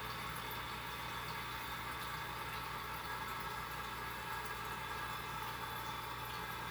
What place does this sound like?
restroom